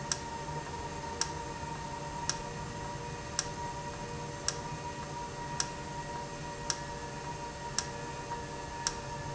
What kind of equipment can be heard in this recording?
valve